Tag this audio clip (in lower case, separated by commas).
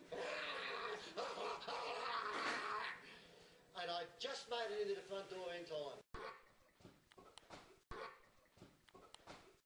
speech